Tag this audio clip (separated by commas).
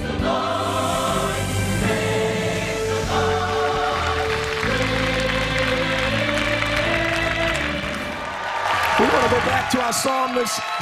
Music, Speech